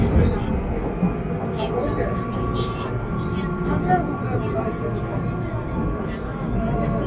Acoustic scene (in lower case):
subway train